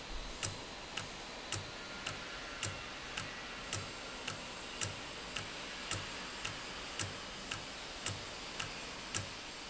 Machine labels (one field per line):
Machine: valve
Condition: normal